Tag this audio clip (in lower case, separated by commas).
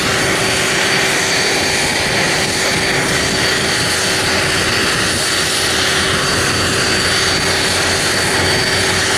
airplane, vehicle